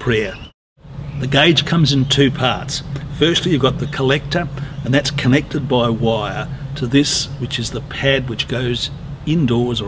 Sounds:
Speech

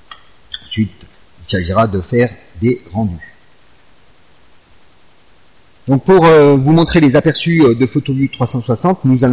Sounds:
Speech

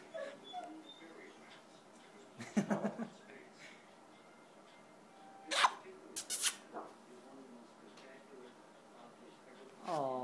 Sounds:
Speech, tweet

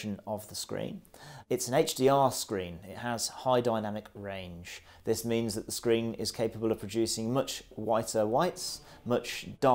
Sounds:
Speech

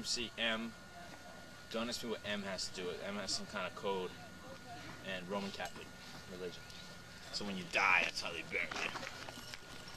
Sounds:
Speech

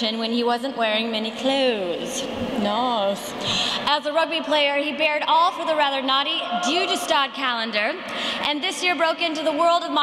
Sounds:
Speech, Female speech

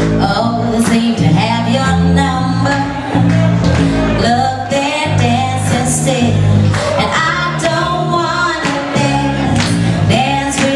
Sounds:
Music

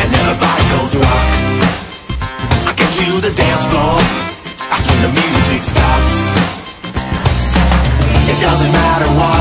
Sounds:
Music

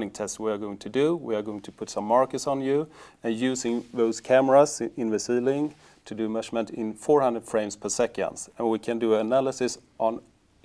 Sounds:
Speech, inside a small room

